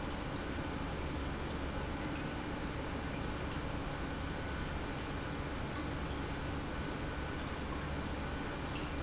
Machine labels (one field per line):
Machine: pump